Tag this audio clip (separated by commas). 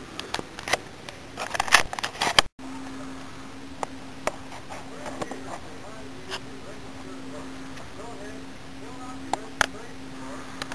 Speech